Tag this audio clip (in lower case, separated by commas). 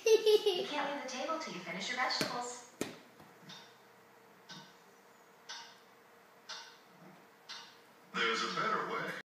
speech